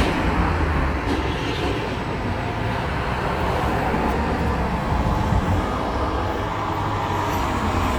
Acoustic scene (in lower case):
street